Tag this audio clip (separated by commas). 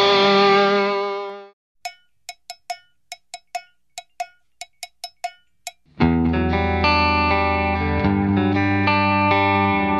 Musical instrument, Bass guitar, Music, Electric guitar, Guitar, Plucked string instrument